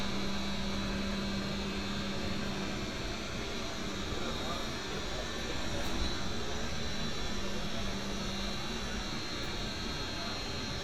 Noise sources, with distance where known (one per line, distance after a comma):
engine of unclear size
person or small group talking